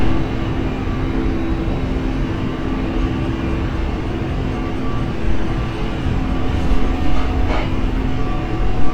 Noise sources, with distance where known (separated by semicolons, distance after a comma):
unidentified impact machinery